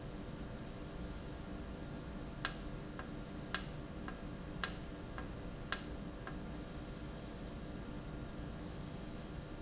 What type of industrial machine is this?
valve